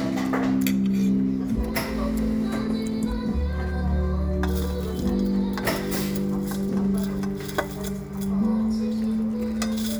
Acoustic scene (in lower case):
crowded indoor space